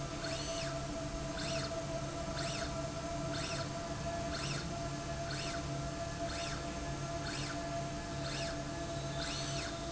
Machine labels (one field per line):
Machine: slide rail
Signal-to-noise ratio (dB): -6 dB